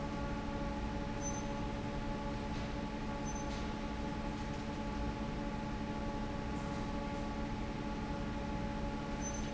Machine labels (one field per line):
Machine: fan